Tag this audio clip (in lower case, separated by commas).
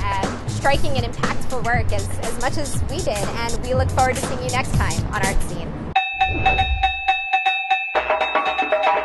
wood block, music, speech